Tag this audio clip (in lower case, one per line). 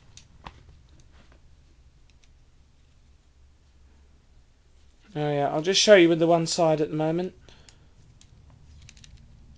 speech